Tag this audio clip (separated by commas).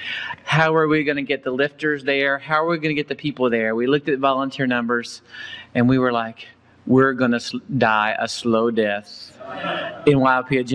Speech